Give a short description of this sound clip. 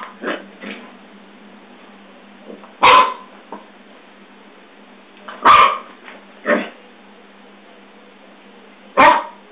A dog barks and yips before settling down